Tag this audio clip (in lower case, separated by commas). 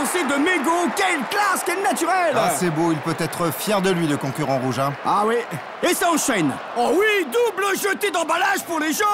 speech